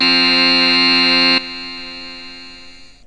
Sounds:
music
musical instrument
keyboard (musical)

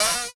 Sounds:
home sounds
cupboard open or close

